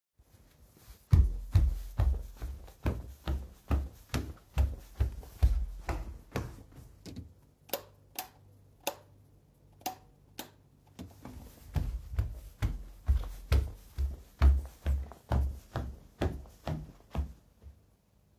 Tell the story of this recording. I walked over to the light switched, flickered the light a bit, and walked back.